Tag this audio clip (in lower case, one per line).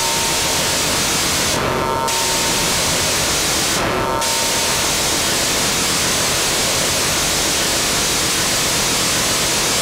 white noise